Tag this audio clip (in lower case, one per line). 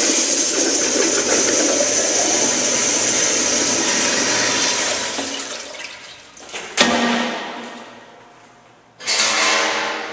toilet flush
water